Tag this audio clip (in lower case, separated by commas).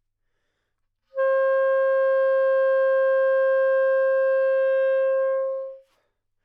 musical instrument, music, woodwind instrument